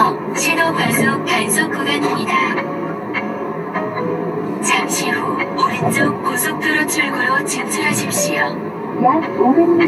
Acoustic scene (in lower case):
car